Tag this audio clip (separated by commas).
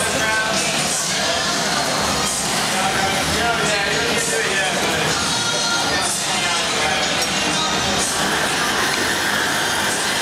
Speech, Music